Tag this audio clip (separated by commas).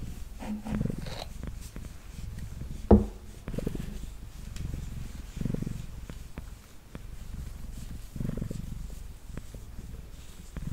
cat purring